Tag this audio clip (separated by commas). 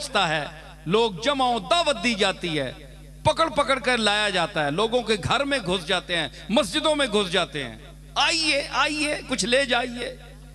man speaking, Speech